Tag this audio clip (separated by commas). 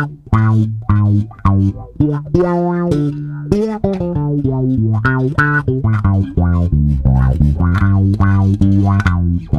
inside a small room, Bass guitar, Musical instrument, Plucked string instrument, Guitar, Music